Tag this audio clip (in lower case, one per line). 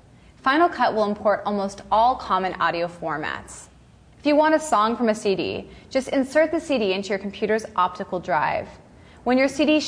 speech